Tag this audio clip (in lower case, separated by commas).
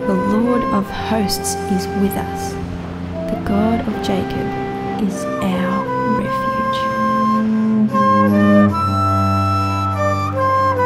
music, speech